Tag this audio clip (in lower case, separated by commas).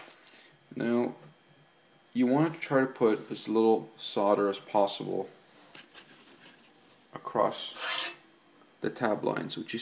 speech, inside a small room